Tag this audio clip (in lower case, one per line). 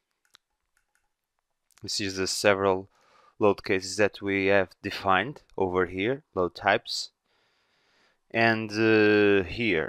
speech